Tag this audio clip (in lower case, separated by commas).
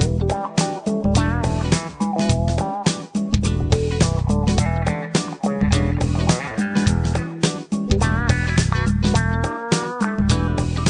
music